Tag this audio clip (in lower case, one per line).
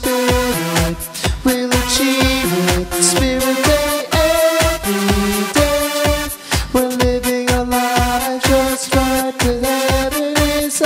music
dance music
pop music
happy music